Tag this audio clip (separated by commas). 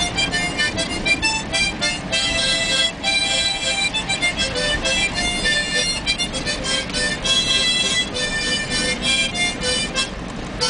Music, Motor vehicle (road), Car, Vehicle